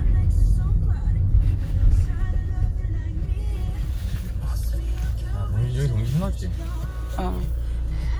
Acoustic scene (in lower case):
car